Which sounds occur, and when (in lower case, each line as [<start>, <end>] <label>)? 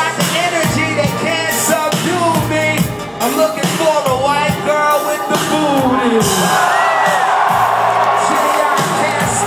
[0.05, 9.45] music
[0.12, 2.77] male singing
[3.15, 6.22] male singing
[8.14, 9.45] male singing